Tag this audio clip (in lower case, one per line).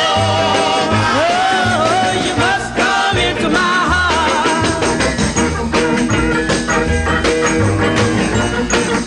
rattle (instrument)
music